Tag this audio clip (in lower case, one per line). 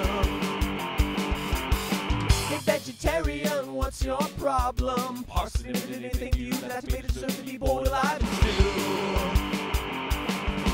music